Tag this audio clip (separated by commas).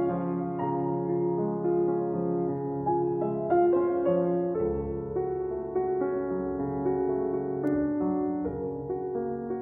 Music